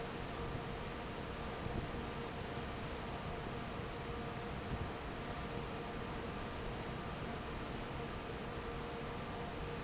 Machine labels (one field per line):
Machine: fan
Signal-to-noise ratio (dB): 0 dB